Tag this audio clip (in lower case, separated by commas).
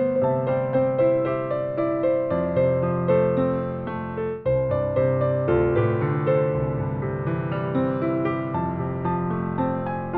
music